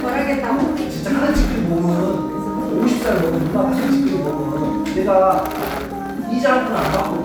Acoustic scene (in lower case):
cafe